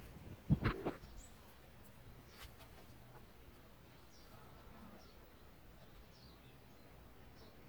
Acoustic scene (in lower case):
park